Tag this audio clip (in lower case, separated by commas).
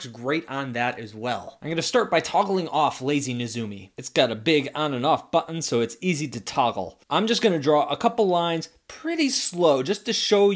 speech